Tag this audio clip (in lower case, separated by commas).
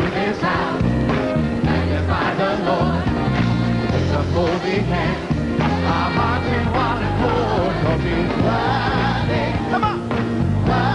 guitar, musical instrument, plucked string instrument, bass guitar, music